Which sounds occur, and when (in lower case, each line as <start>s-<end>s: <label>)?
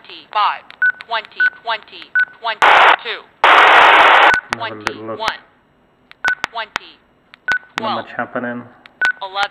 0.0s-9.5s: mechanisms
0.1s-0.6s: woman speaking
0.1s-0.1s: tick
0.7s-0.8s: tick
0.8s-1.0s: bleep
1.0s-1.1s: tick
1.1s-1.5s: woman speaking
1.3s-1.3s: tick
1.4s-1.6s: bleep
1.6s-2.1s: woman speaking
2.0s-2.1s: tick
2.2s-2.3s: bleep
2.2s-2.3s: tick
2.4s-2.6s: woman speaking
2.6s-3.0s: noise
3.0s-3.2s: woman speaking
3.4s-4.4s: noise
4.3s-4.4s: bleep
4.4s-4.4s: tick
4.5s-4.6s: tick
4.5s-5.0s: woman speaking
4.6s-5.2s: male speech
4.9s-5.0s: tick
5.2s-5.4s: woman speaking
5.3s-5.3s: tick
6.1s-6.2s: tick
6.3s-6.3s: tick
6.3s-6.4s: bleep
6.5s-6.5s: tick
6.5s-7.1s: woman speaking
6.8s-6.8s: tick
7.3s-7.4s: tick
7.5s-7.7s: bleep
7.5s-7.6s: tick
7.8s-7.9s: tick
7.8s-8.0s: woman speaking
7.8s-8.7s: male speech
8.8s-8.9s: tick
9.0s-9.2s: bleep
9.1s-9.2s: tick
9.2s-9.5s: woman speaking
9.5s-9.5s: tick